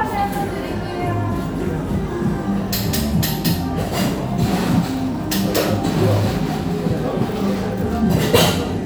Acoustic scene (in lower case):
cafe